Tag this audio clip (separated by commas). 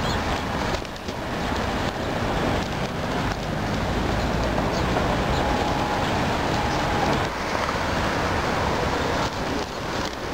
Bird, outside, rural or natural, Pigeon